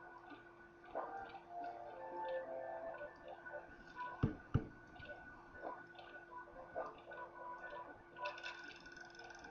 Synthesized music playing with some ticktock and knocking sounds